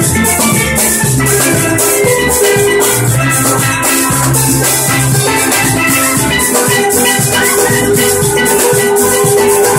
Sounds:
playing steelpan

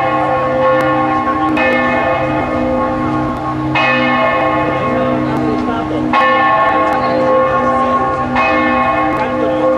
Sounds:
church bell ringing

